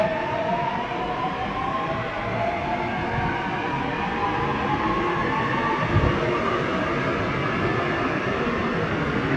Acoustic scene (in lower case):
subway station